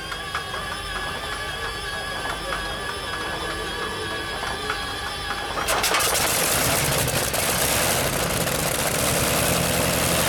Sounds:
Engine starting, Heavy engine (low frequency), Vehicle, Engine, Idling, vroom

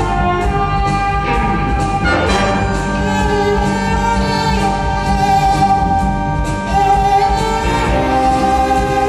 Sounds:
Bowed string instrument, fiddle, Cello

